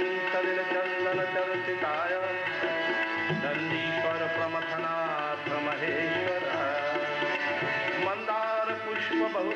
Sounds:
Music, Tabla

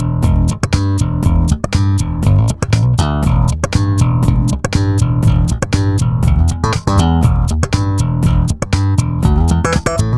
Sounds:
Music, Guitar, Plucked string instrument, Musical instrument

